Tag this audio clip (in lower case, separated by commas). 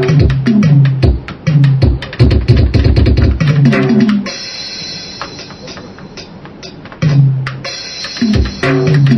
drum, music, musical instrument, drum kit